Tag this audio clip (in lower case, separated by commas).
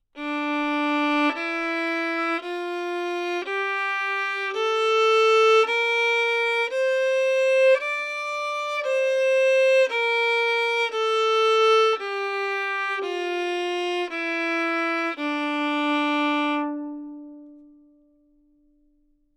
bowed string instrument, musical instrument, music